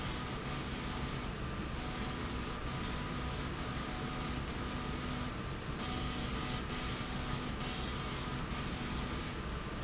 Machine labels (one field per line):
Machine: slide rail